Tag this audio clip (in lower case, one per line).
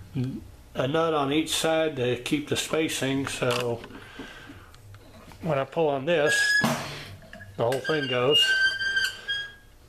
tools
speech